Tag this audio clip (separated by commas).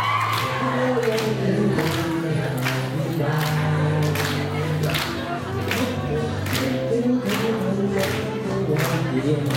Male singing